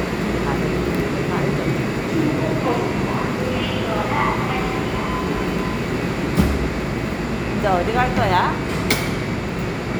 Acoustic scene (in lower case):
subway station